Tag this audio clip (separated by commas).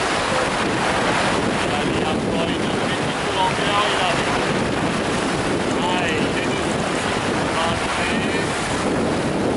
Speech, Boat, sailing ship, Vehicle